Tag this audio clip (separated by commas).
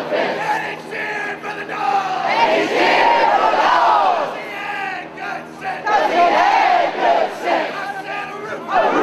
Speech